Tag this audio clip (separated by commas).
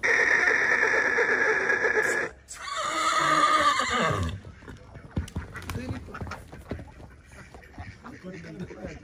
horse neighing